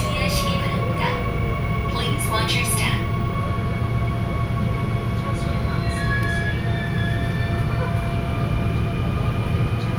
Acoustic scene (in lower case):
subway train